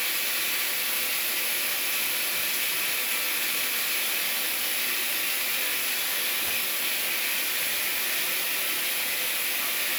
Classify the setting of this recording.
restroom